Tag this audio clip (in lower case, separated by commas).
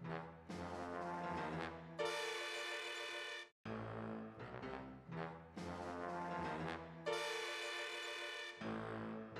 music